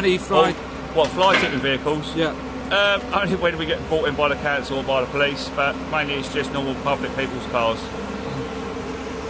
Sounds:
speech
vehicle

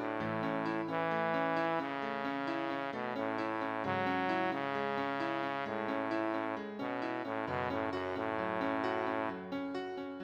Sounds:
music

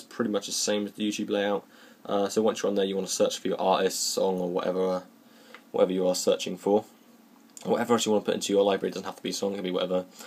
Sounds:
speech

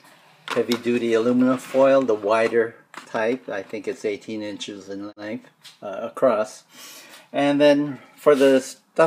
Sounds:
speech

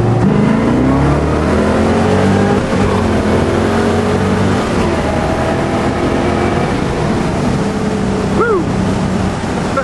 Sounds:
speech

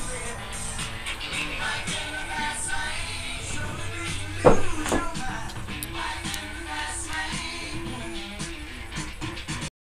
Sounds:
music

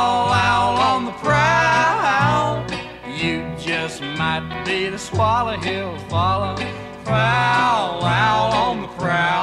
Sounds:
music

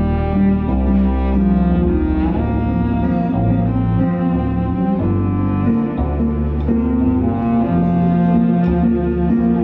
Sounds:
music
cello

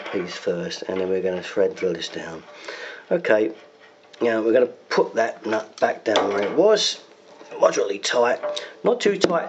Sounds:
speech
inside a small room

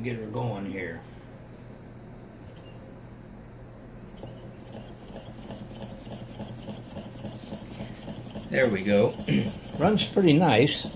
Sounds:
speech

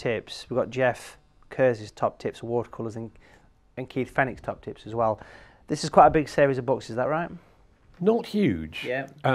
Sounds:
speech

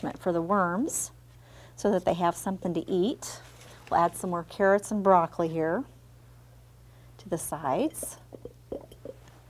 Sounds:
speech

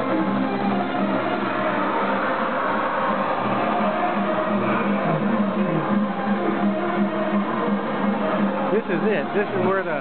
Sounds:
electric guitar
speech
musical instrument
music
plucked string instrument
guitar

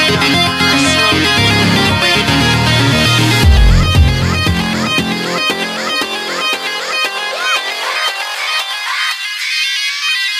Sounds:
music

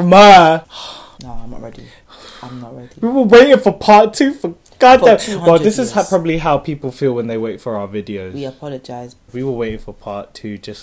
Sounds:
speech

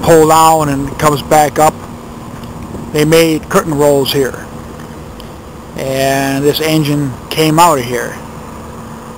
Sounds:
speech

